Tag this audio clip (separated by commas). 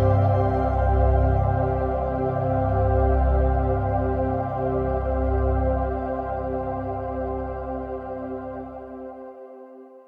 New-age music